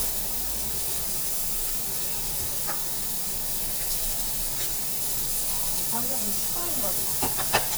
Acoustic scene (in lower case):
restaurant